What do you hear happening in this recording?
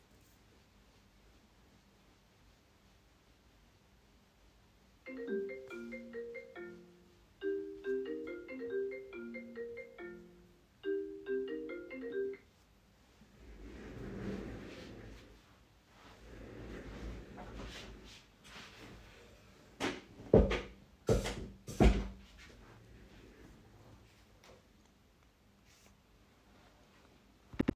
I get a call in my laptop, moves my chair, adjusts my chair height.